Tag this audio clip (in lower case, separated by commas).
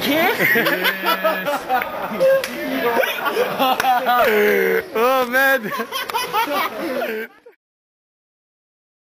speech